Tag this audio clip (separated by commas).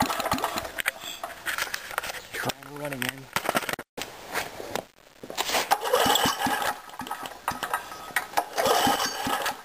Engine starting, Engine, Speech